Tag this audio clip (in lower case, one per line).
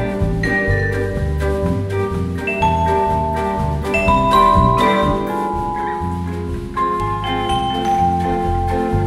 vibraphone
bowed string instrument
percussion
playing marimba
musical instrument
music
marimba